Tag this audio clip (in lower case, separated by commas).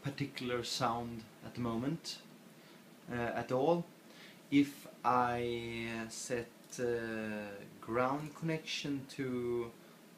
speech